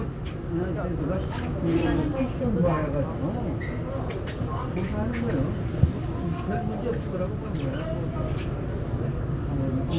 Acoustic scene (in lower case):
subway train